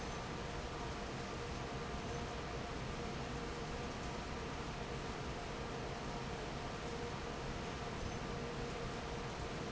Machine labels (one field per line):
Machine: fan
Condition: normal